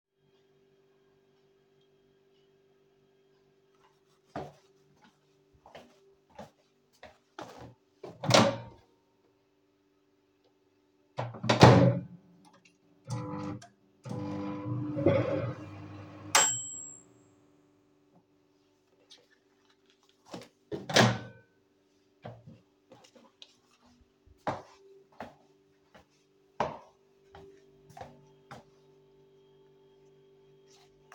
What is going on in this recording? walked to microwave;open microwave;microwave running sound;open door;walk away